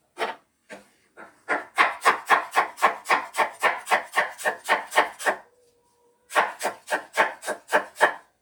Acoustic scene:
kitchen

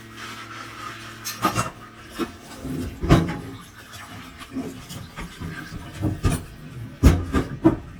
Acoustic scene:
kitchen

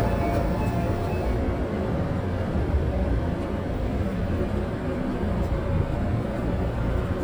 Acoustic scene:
subway train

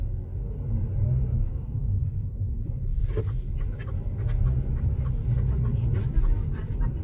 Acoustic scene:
car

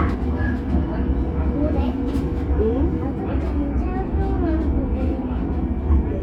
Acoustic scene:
subway train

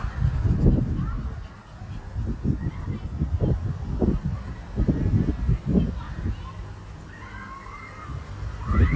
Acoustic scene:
residential area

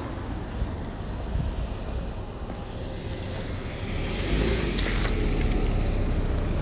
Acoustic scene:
street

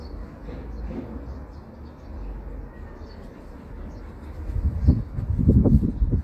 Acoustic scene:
residential area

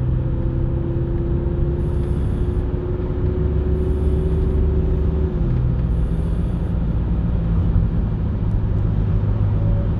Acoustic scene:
car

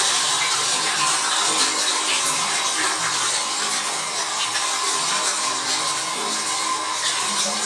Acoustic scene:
restroom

